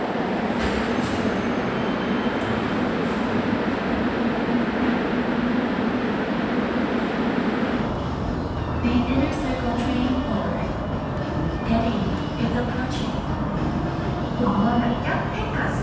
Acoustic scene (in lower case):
subway station